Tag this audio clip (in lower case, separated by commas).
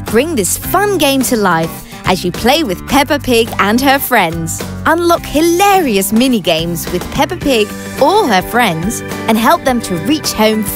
speech, music